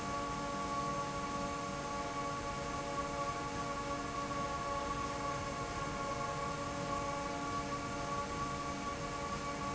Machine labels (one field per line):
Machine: fan